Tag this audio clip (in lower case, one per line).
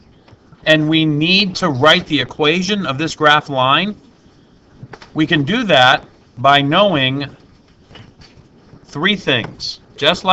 speech